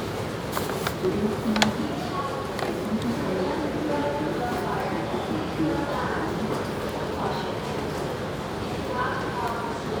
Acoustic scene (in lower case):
subway station